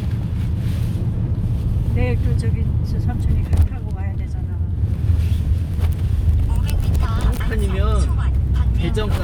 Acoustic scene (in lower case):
car